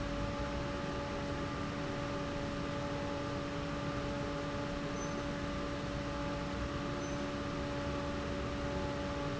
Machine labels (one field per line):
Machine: fan